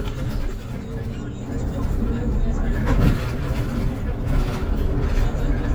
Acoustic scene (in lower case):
bus